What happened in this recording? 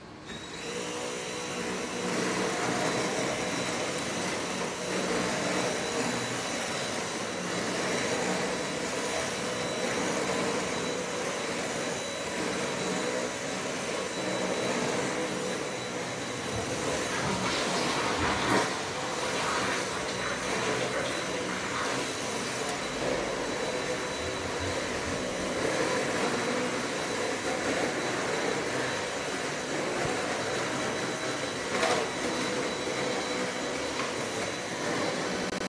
I am vacuuming in the hallway as someone is flushing the toilet. Device was placed on a shelf in the hallway right next to the small bathroom; bathroom door was open.